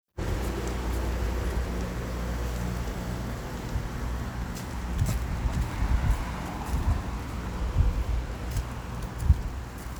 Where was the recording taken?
in a residential area